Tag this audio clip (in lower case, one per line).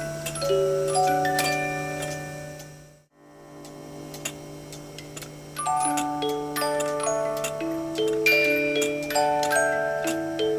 tick
tick-tock
music